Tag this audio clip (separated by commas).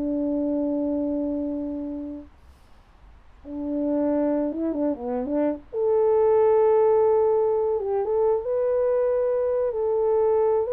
French horn, playing french horn, Brass instrument